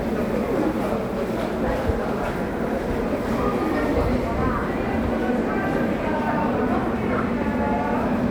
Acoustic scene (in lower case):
subway station